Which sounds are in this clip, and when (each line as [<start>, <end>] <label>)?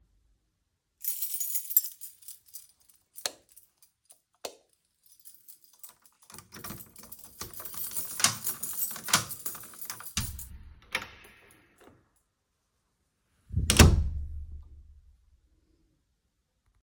[1.01, 2.63] keys
[3.13, 3.41] light switch
[4.33, 4.61] light switch
[5.23, 10.47] keys
[5.81, 10.35] door
[10.45, 11.19] door
[13.50, 14.20] door